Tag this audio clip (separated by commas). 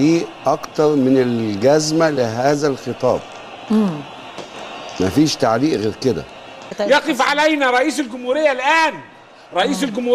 man speaking, Speech, Conversation